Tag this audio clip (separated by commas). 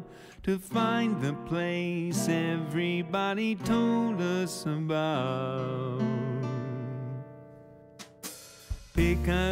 Music, Sad music